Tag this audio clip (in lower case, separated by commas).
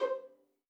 musical instrument, music, bowed string instrument